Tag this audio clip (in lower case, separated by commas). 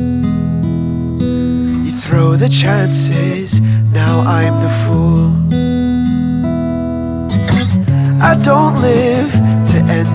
music, tender music